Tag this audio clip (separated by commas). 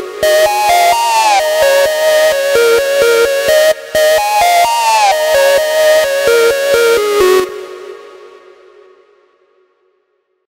Music